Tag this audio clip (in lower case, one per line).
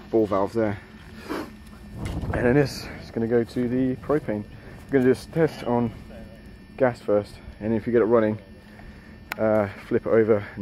outside, rural or natural
speech